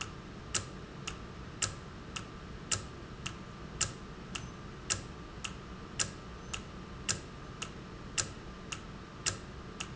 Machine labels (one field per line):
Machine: valve